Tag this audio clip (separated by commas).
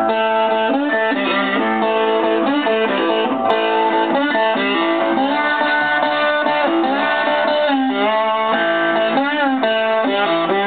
Strum, Musical instrument, Plucked string instrument, Music, Bass guitar, Guitar